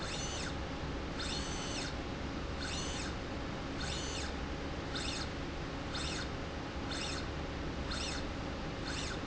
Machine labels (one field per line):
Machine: slide rail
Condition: normal